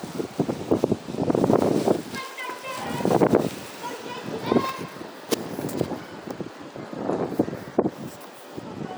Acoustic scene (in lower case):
residential area